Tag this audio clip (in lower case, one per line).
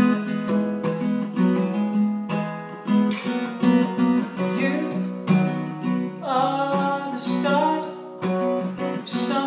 guitar
music
acoustic guitar
musical instrument
plucked string instrument
singing